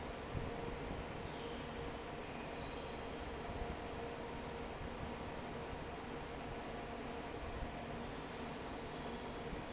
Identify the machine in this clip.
fan